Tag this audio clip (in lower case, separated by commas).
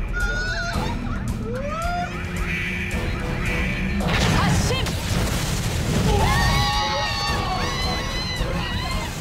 roller coaster running